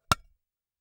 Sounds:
home sounds, dishes, pots and pans

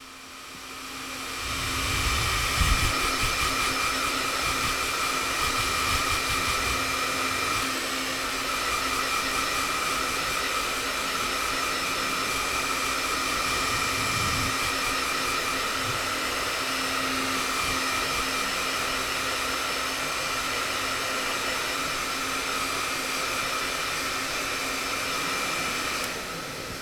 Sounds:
Domestic sounds

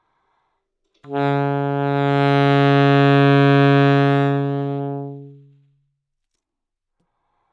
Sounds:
Music, woodwind instrument, Musical instrument

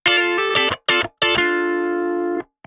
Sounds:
Guitar, Electric guitar, Plucked string instrument, Music, Musical instrument

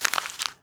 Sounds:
crinkling

